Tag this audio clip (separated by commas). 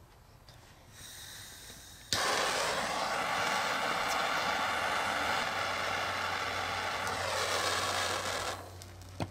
blowtorch igniting